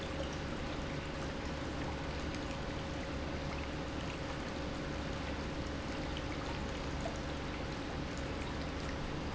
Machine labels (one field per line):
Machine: pump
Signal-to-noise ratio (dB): -6 dB